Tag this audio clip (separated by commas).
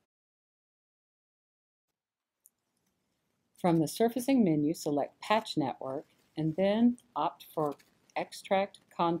Speech